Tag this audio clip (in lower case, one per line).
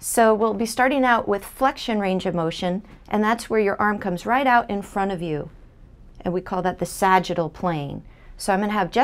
speech